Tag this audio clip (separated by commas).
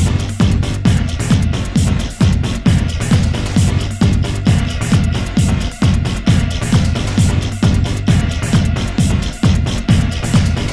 Music, Electronic music, Techno